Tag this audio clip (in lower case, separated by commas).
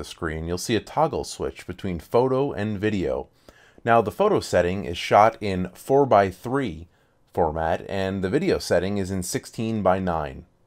speech